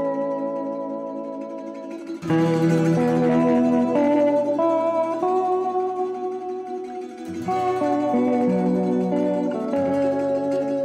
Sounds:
music
zither

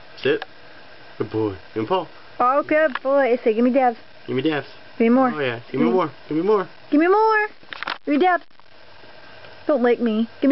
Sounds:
speech

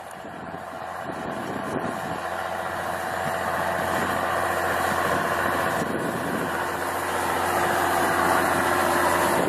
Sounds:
engine knocking

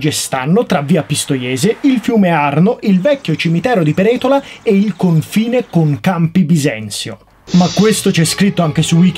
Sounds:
speech
bird
music

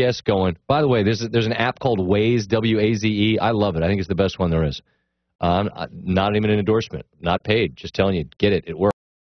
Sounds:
speech

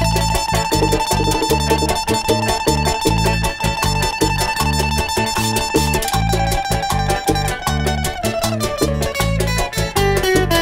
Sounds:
playing guiro

